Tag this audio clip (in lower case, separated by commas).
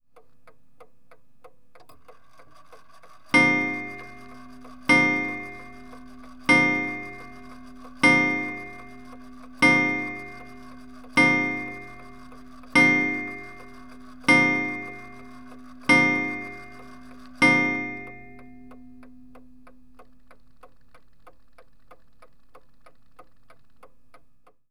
clock, mechanisms